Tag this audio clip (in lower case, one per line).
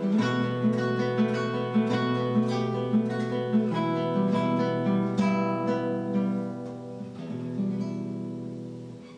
acoustic guitar
plucked string instrument
strum
guitar
musical instrument
bass guitar
music